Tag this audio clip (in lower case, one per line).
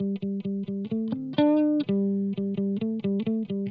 plucked string instrument
electric guitar
guitar
music
musical instrument